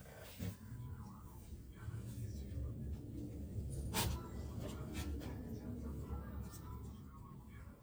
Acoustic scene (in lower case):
elevator